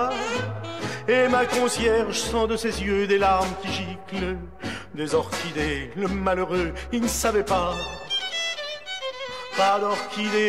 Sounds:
Music

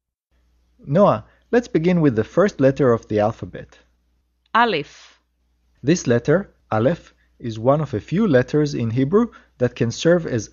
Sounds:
Speech

